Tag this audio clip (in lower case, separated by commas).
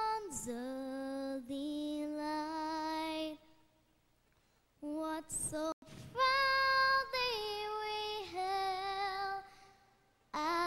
child singing